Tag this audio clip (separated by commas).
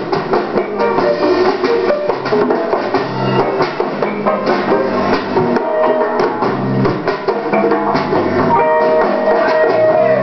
Steelpan, Drum, Music